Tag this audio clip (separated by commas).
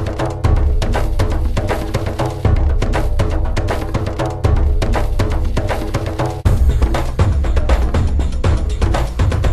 Percussion, Music